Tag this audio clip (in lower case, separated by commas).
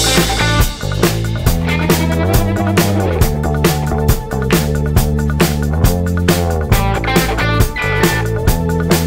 music